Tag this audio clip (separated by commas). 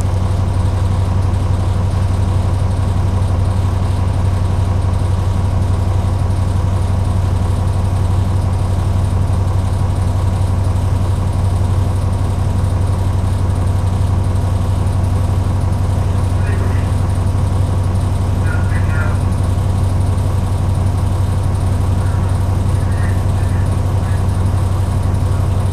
Motor vehicle (road), Vehicle, Bus